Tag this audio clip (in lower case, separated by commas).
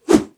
swoosh